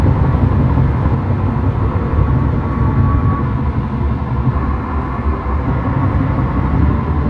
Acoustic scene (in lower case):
car